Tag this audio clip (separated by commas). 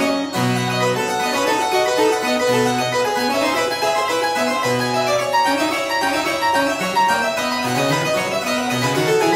playing harpsichord